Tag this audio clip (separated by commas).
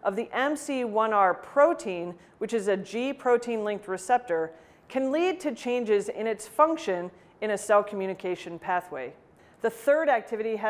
Speech